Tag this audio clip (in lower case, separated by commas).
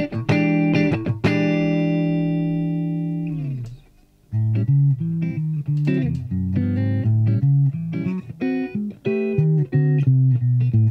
acoustic guitar, music, musical instrument, electric guitar, plucked string instrument, guitar